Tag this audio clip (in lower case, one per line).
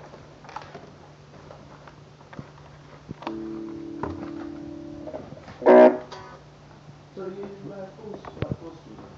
speech
plucked string instrument
musical instrument
bass guitar
music
strum